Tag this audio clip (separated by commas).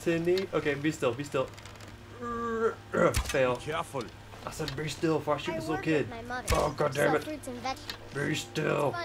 Speech